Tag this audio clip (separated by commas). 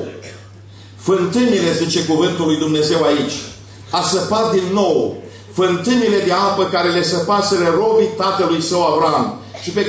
Speech